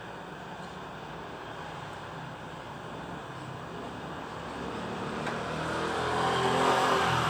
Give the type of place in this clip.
residential area